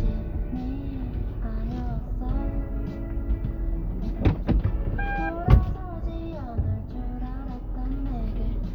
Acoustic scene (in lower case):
car